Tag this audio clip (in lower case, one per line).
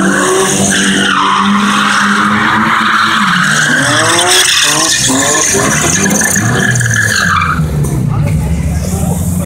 car passing by